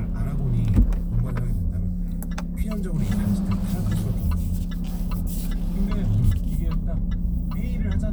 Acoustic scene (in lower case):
car